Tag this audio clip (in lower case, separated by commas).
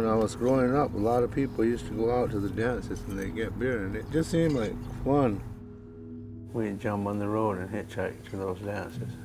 speech, chink, music